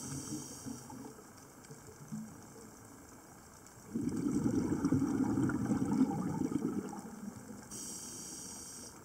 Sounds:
scuba diving

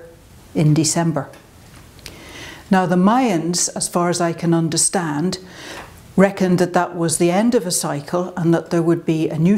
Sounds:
speech

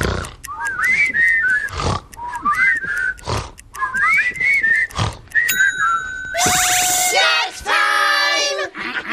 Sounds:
speech
inside a small room

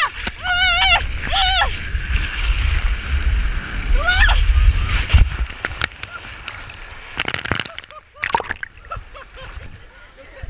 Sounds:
water

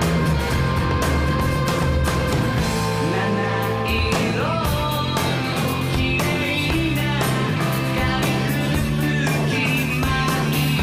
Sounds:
music

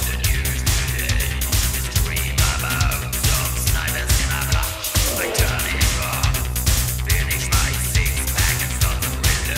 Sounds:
music

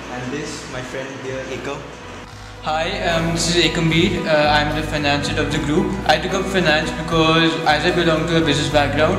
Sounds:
speech
music

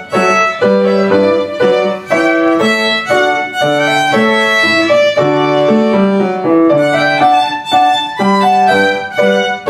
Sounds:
music
fiddle
musical instrument

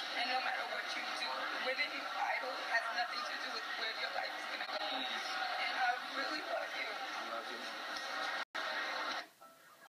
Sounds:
speech
whimper

